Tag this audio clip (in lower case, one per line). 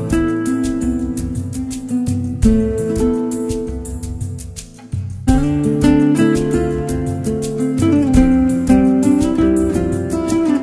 acoustic guitar
music